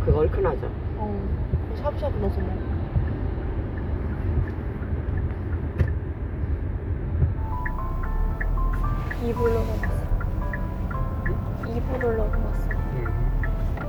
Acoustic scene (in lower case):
car